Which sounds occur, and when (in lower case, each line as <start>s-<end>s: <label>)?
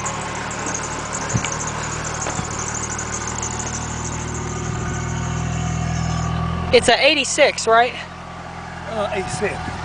0.0s-6.3s: rattle
0.0s-9.8s: car
0.0s-9.8s: wind
1.3s-1.4s: tap
1.4s-1.5s: tick
2.2s-2.5s: walk
5.9s-6.2s: brief tone
6.7s-8.1s: male speech
6.7s-9.6s: conversation
8.8s-9.7s: male speech
9.2s-9.8s: wind noise (microphone)